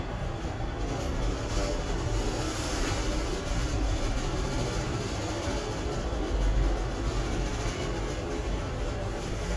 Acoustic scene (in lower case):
elevator